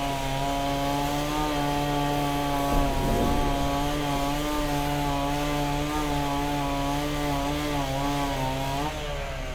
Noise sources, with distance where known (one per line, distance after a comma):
chainsaw, near